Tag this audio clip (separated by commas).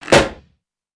Explosion